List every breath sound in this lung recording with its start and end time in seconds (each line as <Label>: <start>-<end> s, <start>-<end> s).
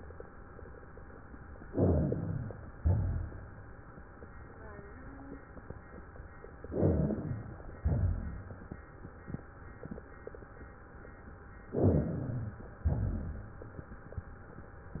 Inhalation: 1.61-2.66 s, 6.62-7.71 s, 11.73-12.81 s
Exhalation: 2.77-3.51 s, 7.82-8.69 s, 12.88-13.76 s
Rhonchi: 1.71-2.45 s, 2.73-3.47 s, 6.68-7.42 s, 7.82-8.69 s, 11.80-12.54 s, 12.88-13.62 s